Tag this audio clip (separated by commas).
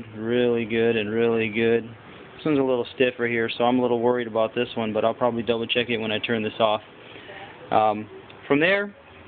Speech